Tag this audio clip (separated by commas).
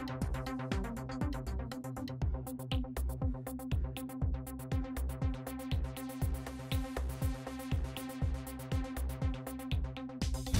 Music